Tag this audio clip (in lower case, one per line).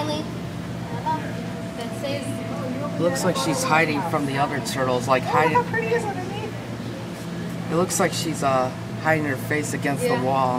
speech